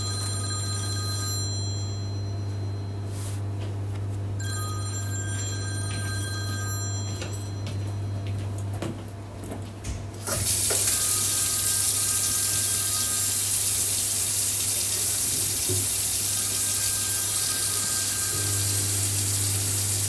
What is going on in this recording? The phone was ringing and the microwave was running. I walked to the faucet and turned on the tap.